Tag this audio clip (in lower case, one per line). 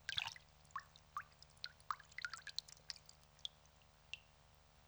rain
water
raindrop